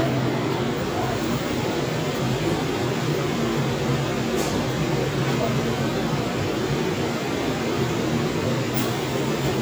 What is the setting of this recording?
subway train